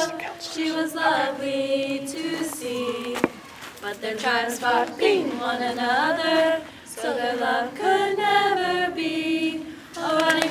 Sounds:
Speech

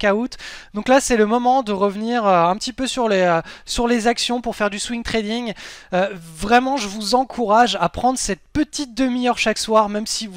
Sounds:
Speech

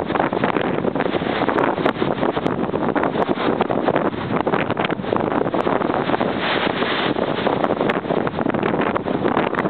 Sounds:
Wind noise (microphone), wind noise

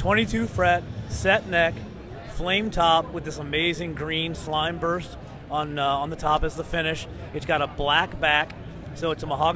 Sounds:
Speech

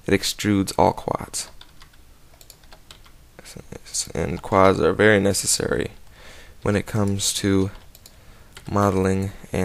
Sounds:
Speech, Typing, Computer keyboard

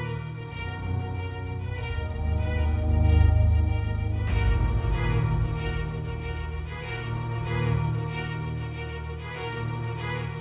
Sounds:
Music

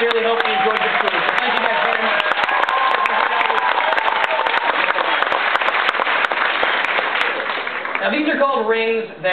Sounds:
Speech

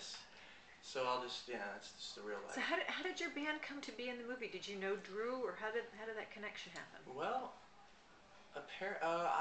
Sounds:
Speech

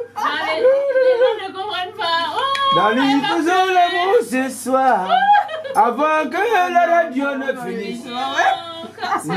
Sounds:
Speech

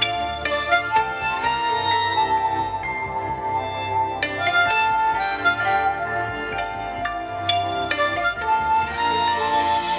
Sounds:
Harmonica, woodwind instrument

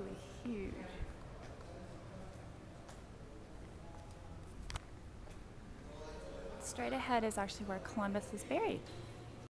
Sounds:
Speech

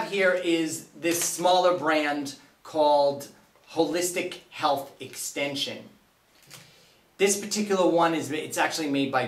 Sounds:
Speech

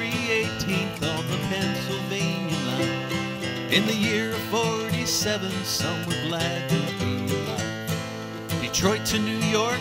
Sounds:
Music

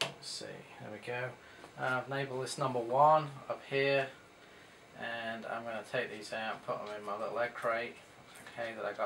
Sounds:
Speech

